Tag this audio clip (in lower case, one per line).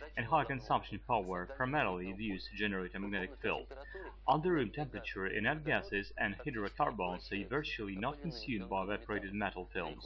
speech